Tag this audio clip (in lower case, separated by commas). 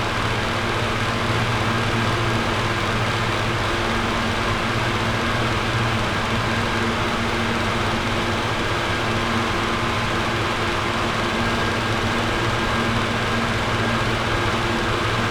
mechanical fan, mechanisms